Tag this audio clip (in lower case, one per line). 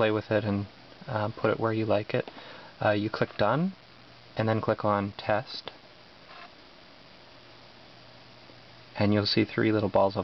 speech